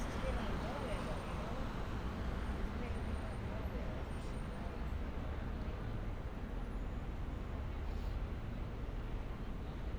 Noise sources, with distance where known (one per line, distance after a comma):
person or small group talking